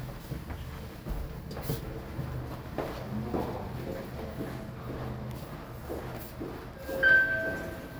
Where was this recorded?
in an elevator